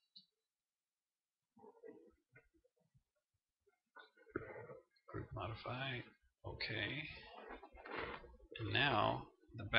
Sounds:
Speech

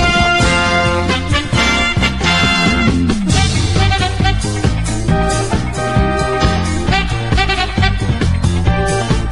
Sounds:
Music

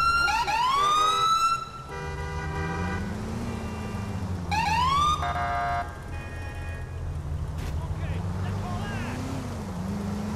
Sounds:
Siren

